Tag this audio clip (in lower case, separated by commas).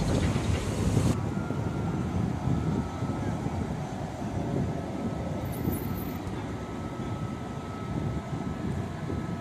bus, vehicle